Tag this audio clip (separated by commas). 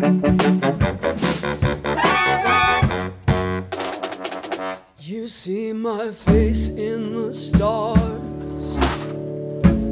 Music